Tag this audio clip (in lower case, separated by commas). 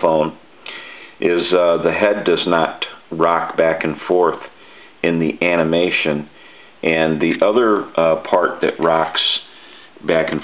speech